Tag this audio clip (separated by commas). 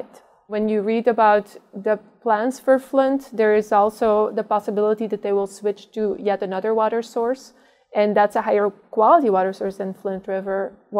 Speech